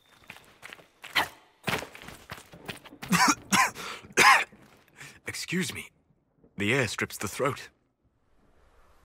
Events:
0.0s-0.4s: cricket
0.0s-9.0s: video game sound
0.0s-9.0s: wind
0.0s-0.4s: run
0.6s-0.8s: run
0.8s-1.0s: cricket
1.0s-1.2s: run
1.1s-1.2s: human voice
1.6s-2.5s: run
1.6s-1.8s: human voice
2.7s-2.9s: run
3.0s-3.4s: cough
3.5s-3.7s: cough
3.7s-4.1s: gasp
4.2s-4.4s: cough
4.6s-4.9s: footsteps
4.9s-5.2s: gasp
5.2s-5.9s: male speech
5.3s-5.5s: footsteps
6.6s-7.7s: male speech

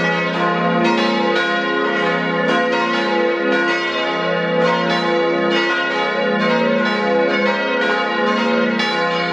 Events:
0.0s-9.3s: church bell

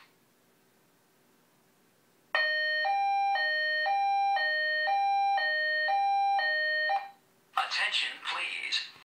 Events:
0.0s-9.0s: mechanisms
2.3s-7.2s: alarm
7.5s-8.9s: male speech

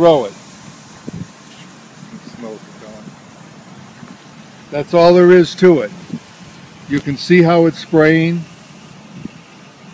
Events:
0.0s-0.3s: man speaking
0.0s-8.4s: conversation
0.0s-9.9s: spray
0.0s-9.9s: wind
1.0s-1.3s: wind noise (microphone)
2.1s-3.1s: man speaking
4.6s-6.2s: man speaking
6.1s-6.3s: wind noise (microphone)
6.8s-8.5s: man speaking
9.1s-9.3s: wind noise (microphone)

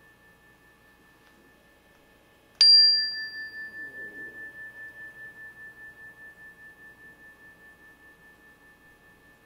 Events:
0.0s-9.4s: mechanisms
0.0s-9.4s: tuning fork

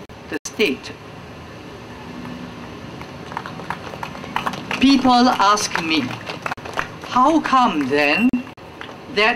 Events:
0.0s-9.3s: mechanisms
0.3s-0.3s: man speaking
0.6s-1.0s: man speaking
2.1s-7.9s: clapping
4.7s-6.0s: man speaking
7.0s-8.3s: man speaking
8.8s-9.0s: clapping

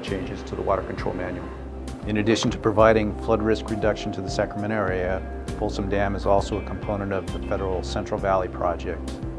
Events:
0.0s-1.4s: man speaking
0.0s-1.7s: mechanisms
0.0s-9.3s: music
1.7s-9.3s: background noise
2.2s-3.1s: man speaking
3.2s-5.3s: man speaking
5.5s-9.1s: man speaking

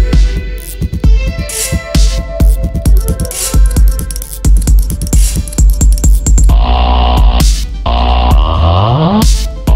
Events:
0.0s-9.7s: music
6.4s-7.4s: sound effect
7.8s-9.2s: sound effect

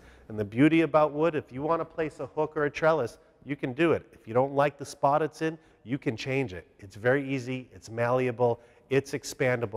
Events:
0.0s-0.2s: breathing
0.0s-9.7s: breathing
0.3s-3.2s: man speaking
3.2s-3.4s: breathing
3.5s-5.5s: man speaking
5.6s-5.8s: breathing
5.8s-6.6s: man speaking
6.8s-8.5s: man speaking
8.6s-8.8s: breathing
8.9s-9.7s: man speaking

